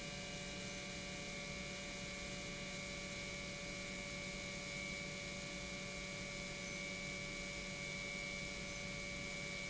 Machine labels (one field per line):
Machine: pump